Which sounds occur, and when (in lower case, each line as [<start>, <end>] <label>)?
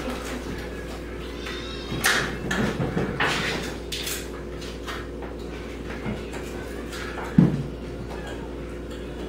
[0.00, 9.25] mechanisms
[0.69, 1.13] generic impact sounds
[1.13, 1.40] thunk
[1.86, 2.15] generic impact sounds
[1.95, 2.24] meow
[2.64, 2.83] generic impact sounds
[3.12, 3.29] generic impact sounds
[3.43, 3.91] generic impact sounds
[4.28, 4.90] generic impact sounds
[5.59, 6.97] human voice
[6.25, 6.43] generic impact sounds
[7.12, 8.19] meow
[7.43, 7.64] generic impact sounds
[8.24, 8.78] animal